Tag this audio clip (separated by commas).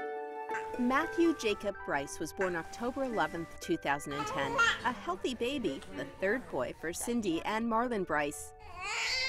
Speech